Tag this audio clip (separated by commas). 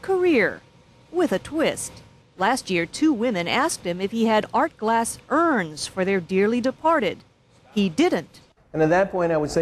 Speech